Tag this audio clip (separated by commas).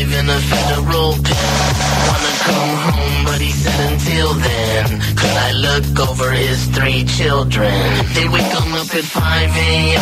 Music